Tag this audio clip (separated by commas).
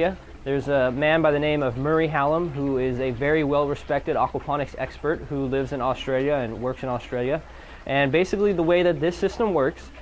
Speech